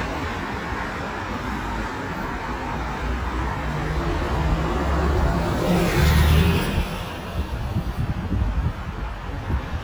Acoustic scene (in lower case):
street